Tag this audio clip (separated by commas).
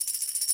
Percussion, Music, Tambourine, Musical instrument